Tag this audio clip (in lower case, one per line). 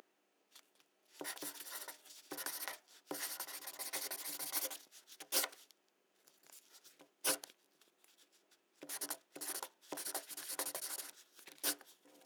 writing
domestic sounds